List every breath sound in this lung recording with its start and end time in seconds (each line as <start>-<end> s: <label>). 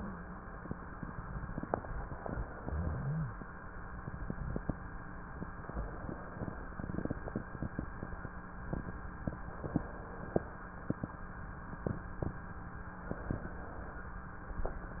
2.13-3.26 s: inhalation
2.62-3.26 s: wheeze
5.62-6.63 s: inhalation
9.57-10.58 s: inhalation
13.11-14.13 s: inhalation